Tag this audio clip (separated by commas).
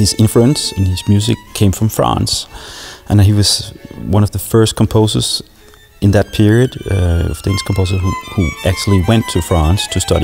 Music, Musical instrument, fiddle, Speech